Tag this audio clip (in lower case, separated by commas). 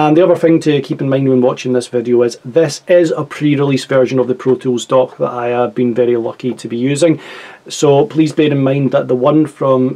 speech